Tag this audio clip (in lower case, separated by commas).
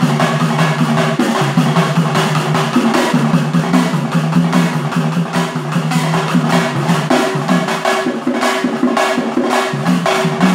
music